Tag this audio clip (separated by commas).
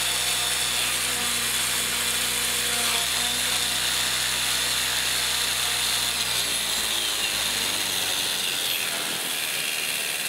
Drill, outside, urban or man-made